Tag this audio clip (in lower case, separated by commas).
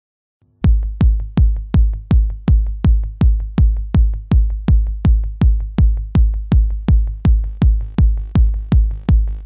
music, drum machine